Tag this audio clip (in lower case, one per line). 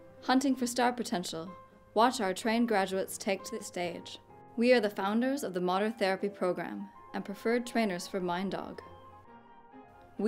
music
speech